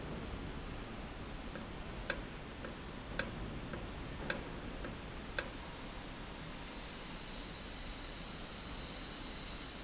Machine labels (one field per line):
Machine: valve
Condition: normal